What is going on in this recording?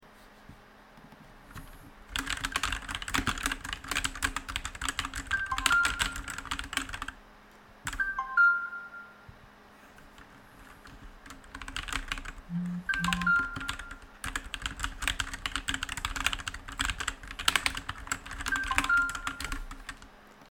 I was typing on my keyboard, then my phone notification went off. I checked my phone, continued typing, and received some more notifications.